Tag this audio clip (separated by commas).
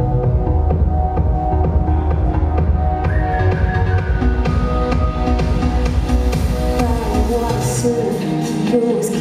Rhythm and blues, Music